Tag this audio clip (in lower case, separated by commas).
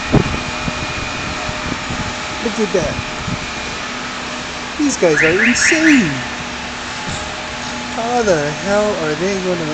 reversing beeps, speech, vehicle